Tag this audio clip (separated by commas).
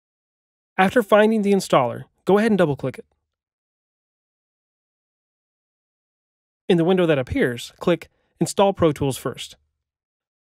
Speech